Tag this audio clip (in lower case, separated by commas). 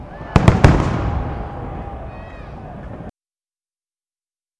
explosion, human group actions, crowd, fireworks, cheering